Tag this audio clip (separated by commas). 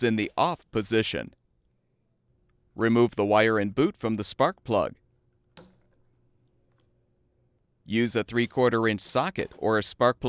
Speech